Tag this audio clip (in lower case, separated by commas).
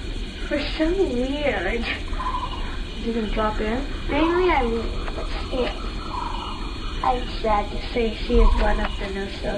speech